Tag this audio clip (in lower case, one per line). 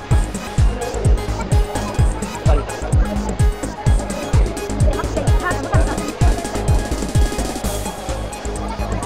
speech
music